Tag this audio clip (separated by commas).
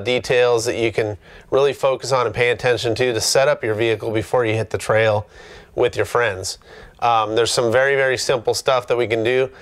Speech